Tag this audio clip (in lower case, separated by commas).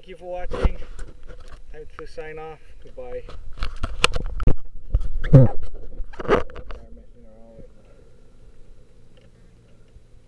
speech, boat